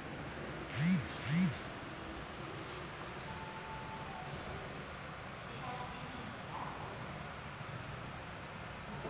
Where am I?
in an elevator